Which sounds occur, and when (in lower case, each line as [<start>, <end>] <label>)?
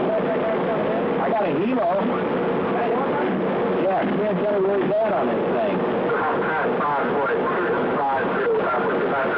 [0.00, 0.99] man speaking
[0.00, 9.35] noise
[0.00, 9.35] radio
[1.15, 2.22] man speaking
[2.64, 3.26] man speaking
[3.77, 5.65] man speaking
[6.04, 9.35] man speaking